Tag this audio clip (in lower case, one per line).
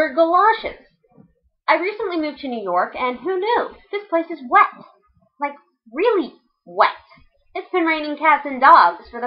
speech